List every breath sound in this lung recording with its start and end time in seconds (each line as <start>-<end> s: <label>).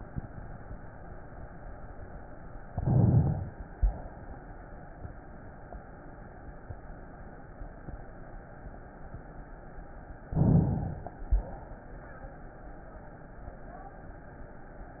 2.66-3.63 s: inhalation
10.32-11.32 s: inhalation